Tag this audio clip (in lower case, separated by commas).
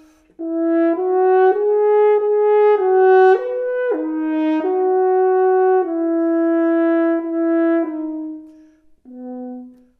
brass instrument, french horn, playing french horn